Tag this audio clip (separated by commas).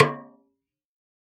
Musical instrument, Drum, Snare drum, Music, Percussion